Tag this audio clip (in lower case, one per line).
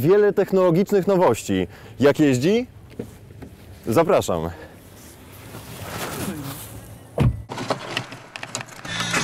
speech
vehicle
car
music